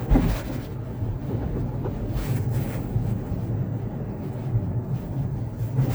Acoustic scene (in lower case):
car